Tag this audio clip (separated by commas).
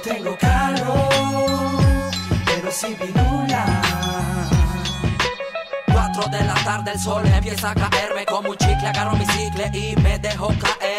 Music